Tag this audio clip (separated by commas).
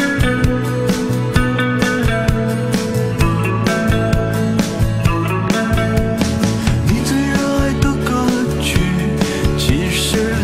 Music